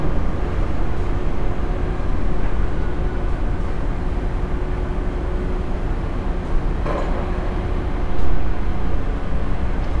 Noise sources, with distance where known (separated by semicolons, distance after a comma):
engine of unclear size